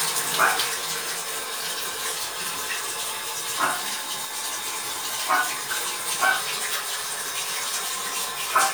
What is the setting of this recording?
restroom